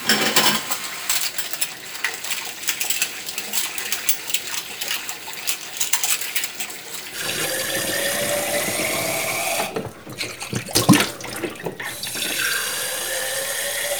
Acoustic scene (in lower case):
kitchen